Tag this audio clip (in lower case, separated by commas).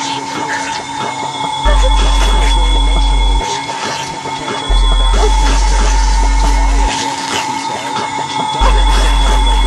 dubstep, music, speech